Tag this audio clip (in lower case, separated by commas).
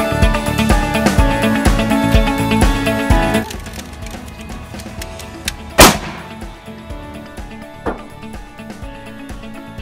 music